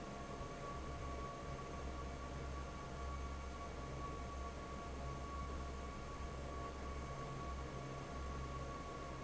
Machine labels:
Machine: fan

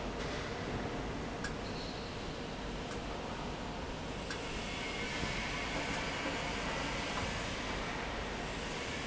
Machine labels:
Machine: fan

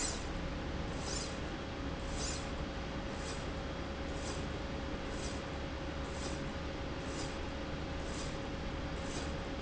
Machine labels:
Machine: slide rail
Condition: normal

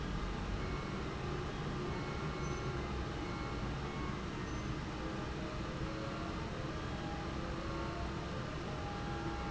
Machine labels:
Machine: fan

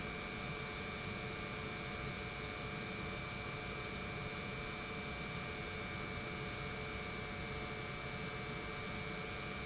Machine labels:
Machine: pump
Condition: normal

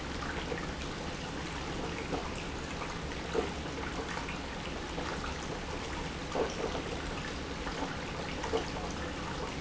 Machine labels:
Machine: pump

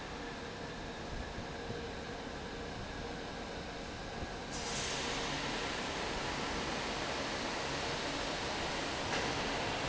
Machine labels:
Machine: fan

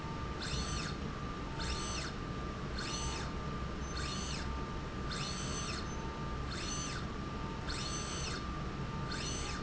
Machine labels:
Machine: slide rail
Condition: normal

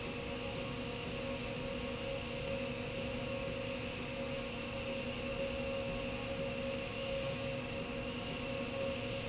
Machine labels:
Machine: slide rail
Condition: normal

